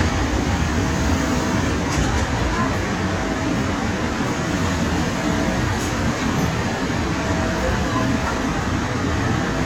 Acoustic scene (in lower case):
subway station